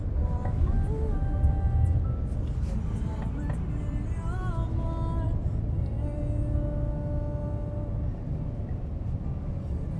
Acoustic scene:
car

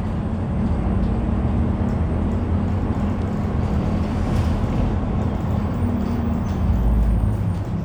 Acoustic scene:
bus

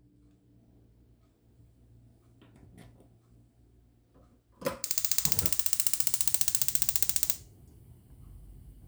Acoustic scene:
kitchen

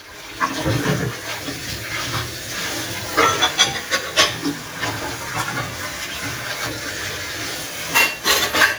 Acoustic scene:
kitchen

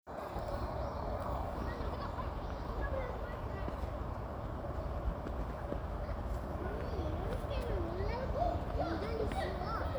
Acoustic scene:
residential area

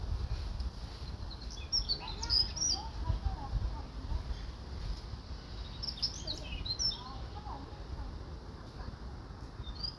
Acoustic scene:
park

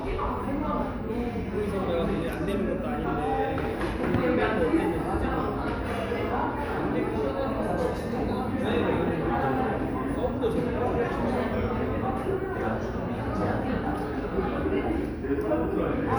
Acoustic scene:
crowded indoor space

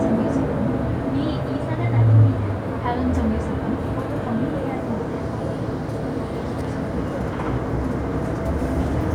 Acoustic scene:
bus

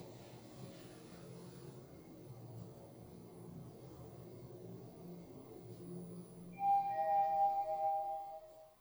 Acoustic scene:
elevator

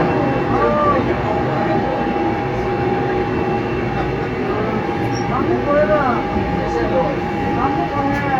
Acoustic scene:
subway train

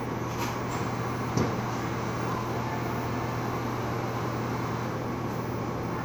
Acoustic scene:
cafe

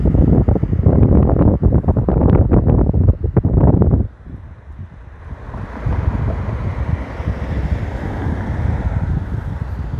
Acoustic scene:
street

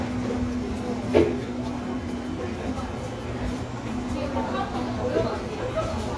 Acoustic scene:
cafe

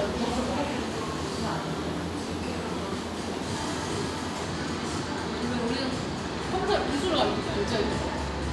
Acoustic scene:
cafe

